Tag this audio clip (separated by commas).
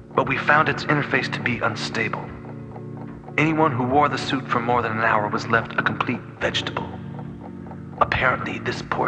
Music, Speech